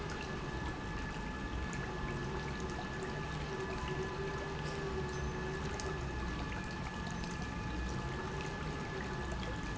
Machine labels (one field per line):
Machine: pump